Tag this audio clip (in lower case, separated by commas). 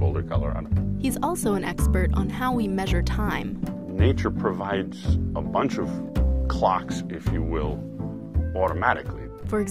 speech, music